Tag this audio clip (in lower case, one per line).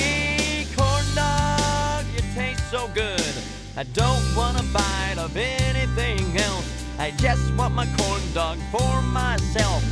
music